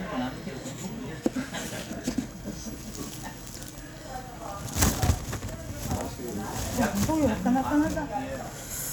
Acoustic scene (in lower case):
restaurant